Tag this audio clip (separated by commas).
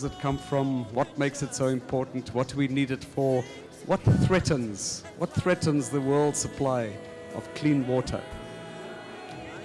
Music, Speech